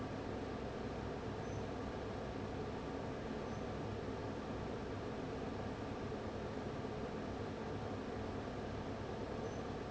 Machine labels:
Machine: fan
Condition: abnormal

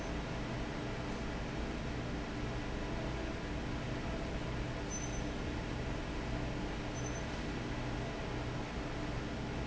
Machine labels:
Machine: fan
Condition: normal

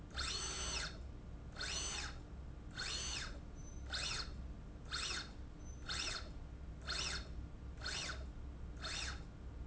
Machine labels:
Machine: slide rail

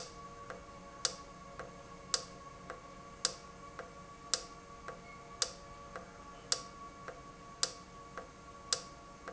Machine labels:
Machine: valve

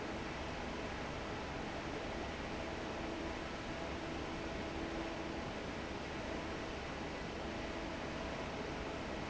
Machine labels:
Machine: fan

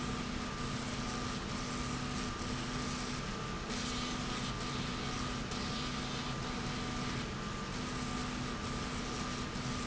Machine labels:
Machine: slide rail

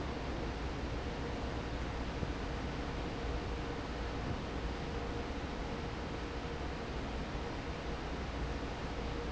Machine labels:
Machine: fan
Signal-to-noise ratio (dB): -6 dB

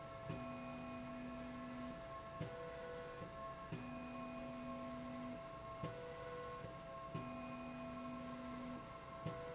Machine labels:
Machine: slide rail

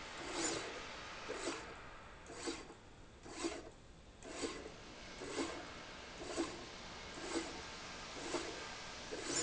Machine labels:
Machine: slide rail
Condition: abnormal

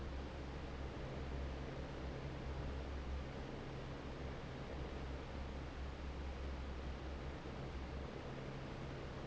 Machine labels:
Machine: fan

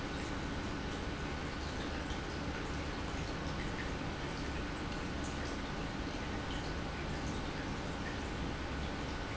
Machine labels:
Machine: pump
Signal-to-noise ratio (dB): -6 dB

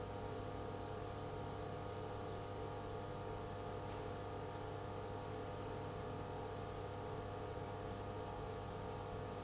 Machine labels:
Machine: pump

